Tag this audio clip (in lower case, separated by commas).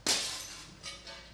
glass, shatter